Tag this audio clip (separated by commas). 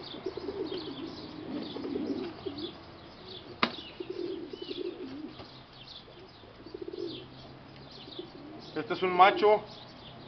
Domestic animals, Bird, dove, Speech